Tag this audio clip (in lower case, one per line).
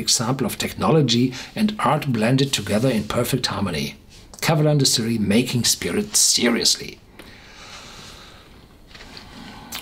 speech